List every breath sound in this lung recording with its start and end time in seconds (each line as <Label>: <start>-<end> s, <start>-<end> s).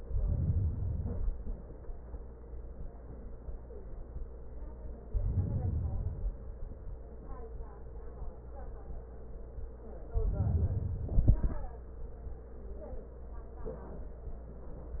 Inhalation: 0.00-1.50 s, 5.08-6.32 s, 10.11-11.82 s